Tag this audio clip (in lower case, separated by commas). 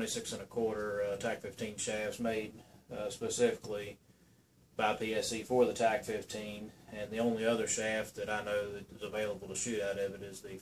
speech